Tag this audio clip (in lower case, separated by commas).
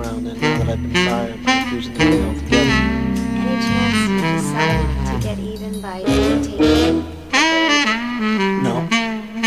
music, speech